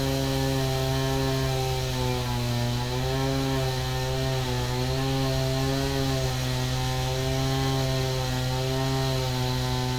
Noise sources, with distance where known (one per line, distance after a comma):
chainsaw